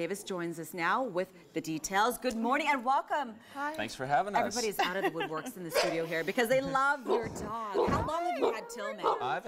People are talking and a dog barks